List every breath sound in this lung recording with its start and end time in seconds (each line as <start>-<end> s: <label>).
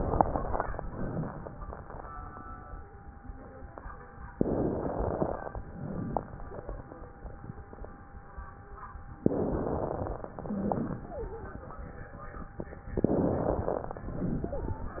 4.38-5.60 s: crackles
4.40-5.58 s: inhalation
5.68-7.19 s: exhalation
6.14-6.33 s: crackles
9.18-10.36 s: inhalation
9.21-10.32 s: crackles
10.36-11.73 s: exhalation
11.00-11.67 s: wheeze
12.85-14.04 s: inhalation
12.91-14.02 s: crackles
14.09-15.00 s: exhalation
14.38-15.00 s: wheeze